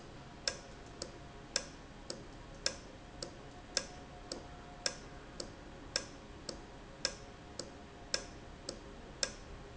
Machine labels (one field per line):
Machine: valve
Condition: normal